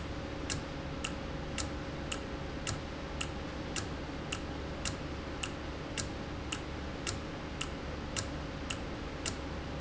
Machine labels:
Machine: valve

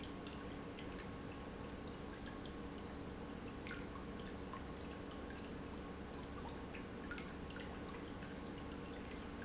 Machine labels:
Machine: pump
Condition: normal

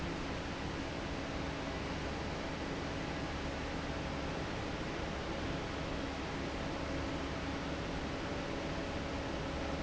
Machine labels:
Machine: fan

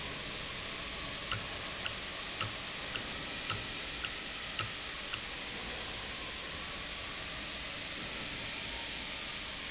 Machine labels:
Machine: valve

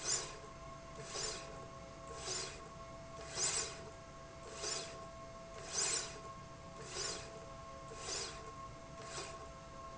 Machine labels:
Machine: slide rail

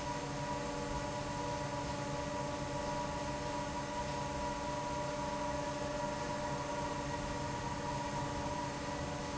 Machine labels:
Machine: fan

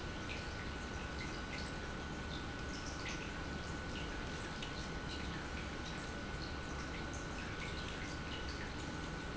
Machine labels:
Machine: pump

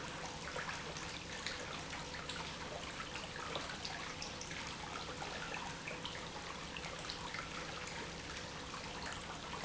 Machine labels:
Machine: pump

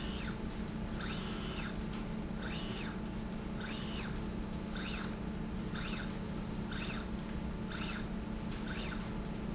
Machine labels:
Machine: slide rail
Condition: normal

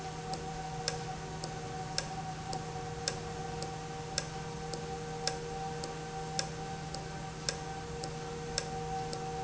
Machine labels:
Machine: valve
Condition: normal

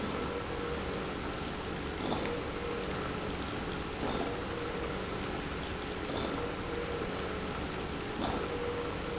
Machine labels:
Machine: pump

